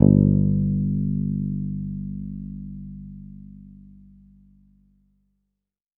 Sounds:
Guitar, Bass guitar, Music, Plucked string instrument, Musical instrument

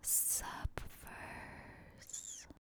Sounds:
Whispering, Human voice

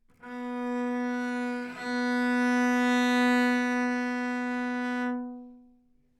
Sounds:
Bowed string instrument, Musical instrument, Music

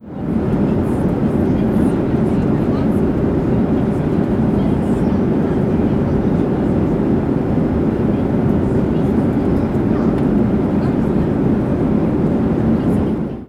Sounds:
Aircraft, airplane, Chatter, Vehicle, Human group actions

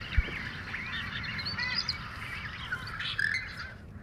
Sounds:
Animal, Bird, Wild animals

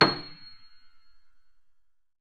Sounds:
Musical instrument, Music, Piano, Keyboard (musical)

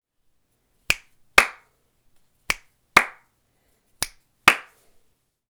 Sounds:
Hands, Clapping

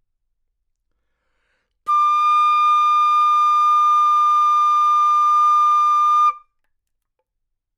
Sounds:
Music, Wind instrument, Musical instrument

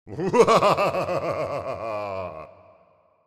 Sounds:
Laughter, Human voice

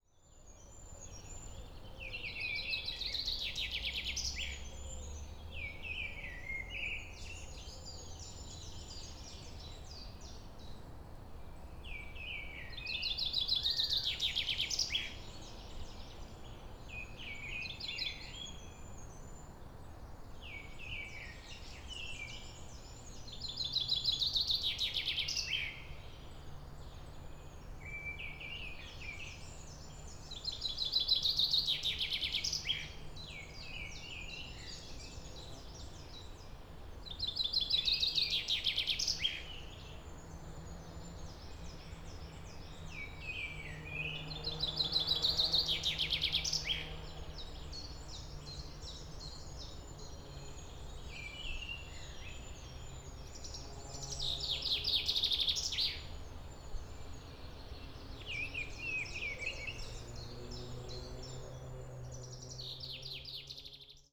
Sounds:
Respiratory sounds, Breathing

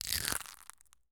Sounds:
Crushing

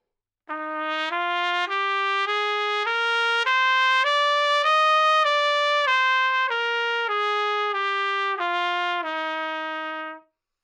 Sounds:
Trumpet, Brass instrument, Musical instrument, Music

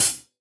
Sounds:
Hi-hat, Percussion, Music, Cymbal, Musical instrument

